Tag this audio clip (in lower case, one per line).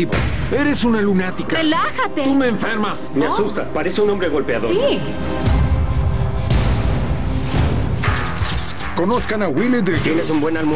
music
speech